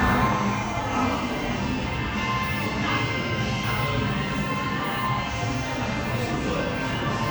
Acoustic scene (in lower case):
crowded indoor space